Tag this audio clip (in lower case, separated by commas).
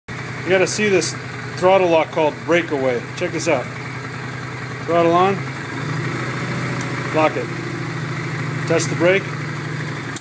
vehicle, motorcycle, speech